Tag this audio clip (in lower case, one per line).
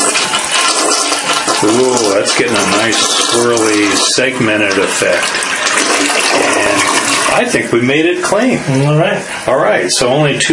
speech
toilet flush